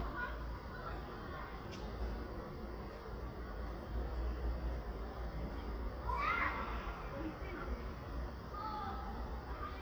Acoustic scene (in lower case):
residential area